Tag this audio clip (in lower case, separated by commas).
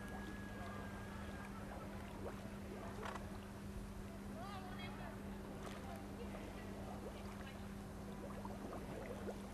speech